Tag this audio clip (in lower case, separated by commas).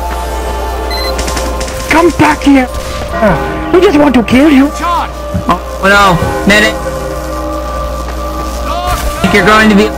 fusillade, music, speech